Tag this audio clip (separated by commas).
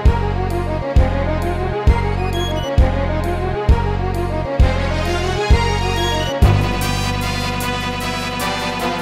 Music